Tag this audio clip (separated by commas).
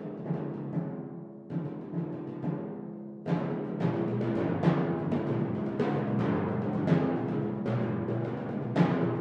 Drum, Percussion, Snare drum